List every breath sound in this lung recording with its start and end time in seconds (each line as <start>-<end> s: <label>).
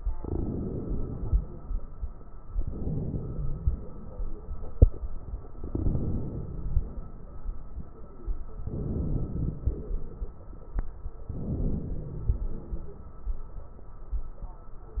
0.19-1.58 s: inhalation
2.56-3.86 s: inhalation
5.60-6.90 s: inhalation
8.68-9.98 s: inhalation
11.36-12.66 s: inhalation